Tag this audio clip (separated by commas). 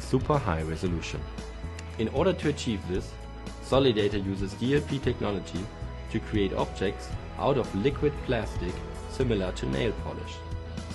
Music, Speech